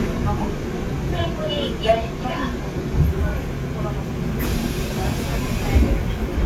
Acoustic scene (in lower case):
subway train